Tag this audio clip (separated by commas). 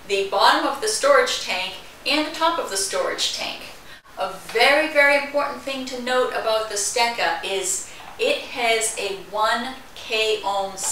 Speech